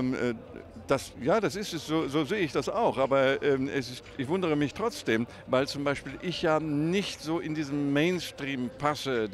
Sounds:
Speech

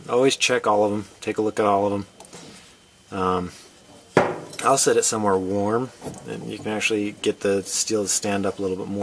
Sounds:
outside, urban or man-made, Speech

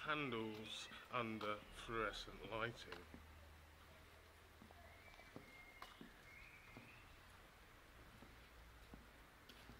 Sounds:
Speech

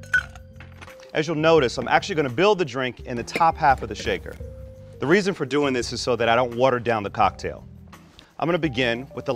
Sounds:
Music, Speech

